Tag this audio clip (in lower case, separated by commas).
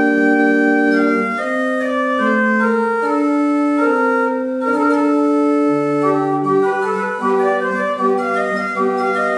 musical instrument, keyboard (musical), organ, music